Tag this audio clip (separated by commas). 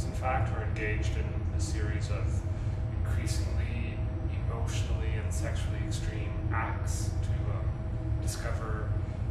Speech